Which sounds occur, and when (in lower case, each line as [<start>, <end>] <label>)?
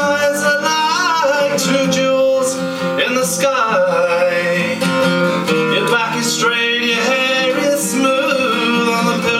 [0.00, 2.55] male singing
[0.00, 9.35] music
[2.98, 4.75] male singing
[5.69, 9.35] male singing